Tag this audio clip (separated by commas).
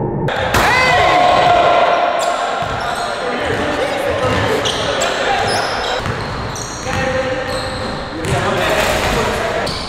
basketball bounce